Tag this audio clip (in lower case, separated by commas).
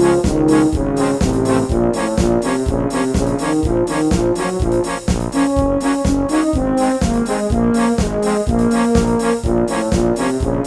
brass instrument, music